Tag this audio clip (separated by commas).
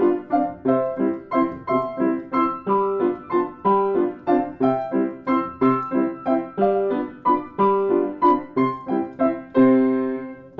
Music